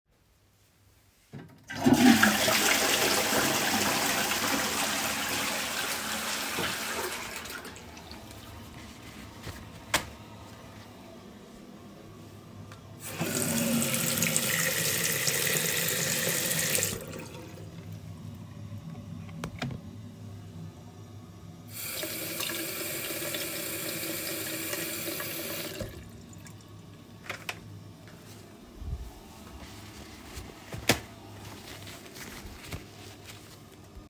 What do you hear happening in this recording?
I flushed the toilet and then tore off a piece of toilet paper. I turned on the tap and let the water run. washed my hands and dried them with toilette paper